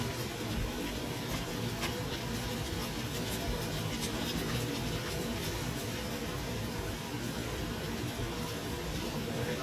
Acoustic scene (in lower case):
kitchen